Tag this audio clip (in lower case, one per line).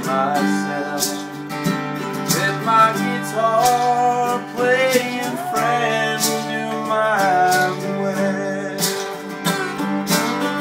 rhythm and blues
music